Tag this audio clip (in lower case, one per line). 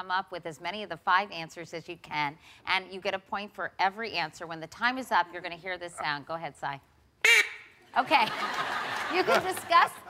speech